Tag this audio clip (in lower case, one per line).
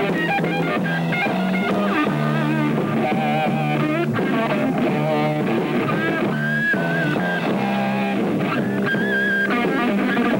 heavy metal
music